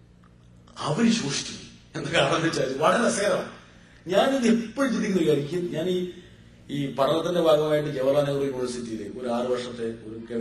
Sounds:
Narration, man speaking, Speech

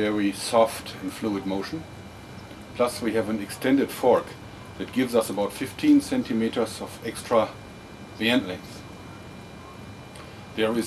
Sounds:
Speech

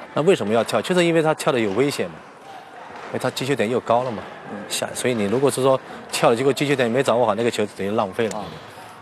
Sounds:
Speech

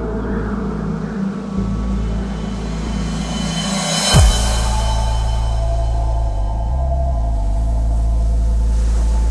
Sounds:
Electronic music, Music, Dubstep

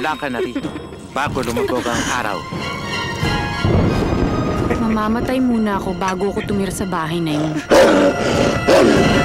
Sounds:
Speech, Music

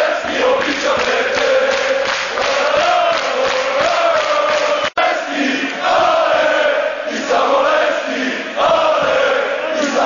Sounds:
Male singing

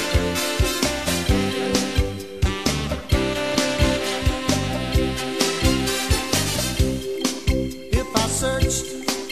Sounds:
Music

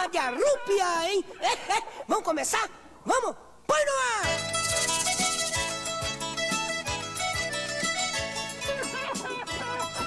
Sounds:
Music, Speech

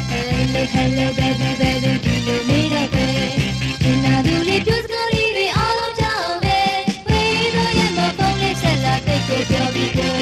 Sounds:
Music

